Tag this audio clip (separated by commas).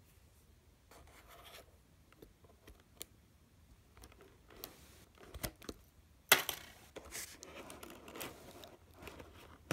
inside a small room, Silence